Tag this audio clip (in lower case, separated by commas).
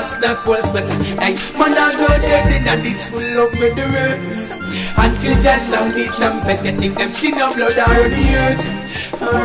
music